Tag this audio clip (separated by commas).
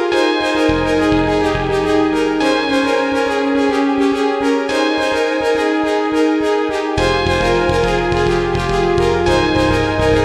Music